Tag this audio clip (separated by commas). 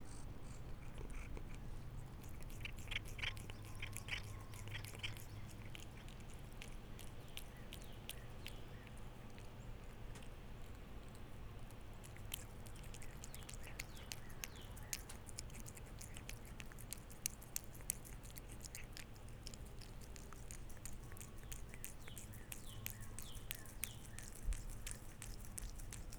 Domestic animals, Cat, Animal